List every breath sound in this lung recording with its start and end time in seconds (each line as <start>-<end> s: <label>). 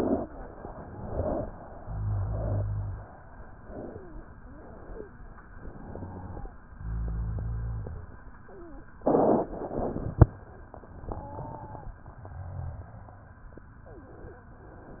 0.63-1.52 s: inhalation
1.75-3.11 s: exhalation
1.75-3.11 s: rhonchi
5.48-6.53 s: inhalation
5.75-6.53 s: wheeze
6.77-8.14 s: exhalation
6.77-8.14 s: rhonchi